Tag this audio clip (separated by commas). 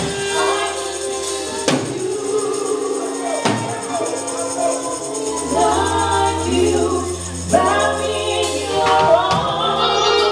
Gospel music, Tambourine, Music, Singing